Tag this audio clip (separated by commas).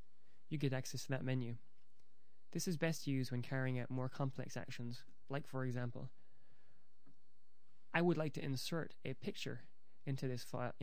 Speech